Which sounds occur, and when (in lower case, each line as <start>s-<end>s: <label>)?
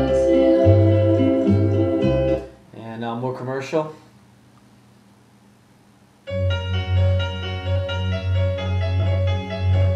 0.0s-2.4s: music
0.0s-2.4s: female singing
0.0s-9.9s: mechanisms
2.7s-3.9s: man speaking
3.9s-4.1s: surface contact
4.5s-4.6s: clicking
6.2s-9.9s: music